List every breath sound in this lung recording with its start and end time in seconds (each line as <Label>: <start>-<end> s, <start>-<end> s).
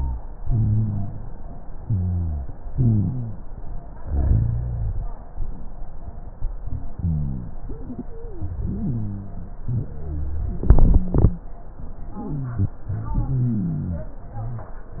Inhalation: 0.46-1.10 s, 2.71-3.36 s, 8.61-9.45 s, 12.16-12.79 s
Exhalation: 1.80-2.45 s, 4.06-5.03 s, 9.70-10.53 s, 12.92-14.16 s
Wheeze: 7.59-7.95 s, 8.12-8.54 s, 8.61-9.45 s, 12.16-12.79 s
Rhonchi: 0.46-1.10 s, 1.80-2.45 s, 2.71-3.36 s, 4.06-5.03 s, 7.02-7.55 s, 9.70-10.53 s, 12.92-14.16 s